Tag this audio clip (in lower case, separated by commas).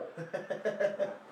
human voice, laughter